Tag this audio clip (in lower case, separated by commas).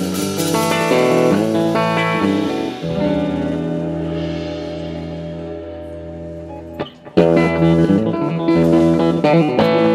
plucked string instrument, music, guitar, musical instrument, bass guitar, electric guitar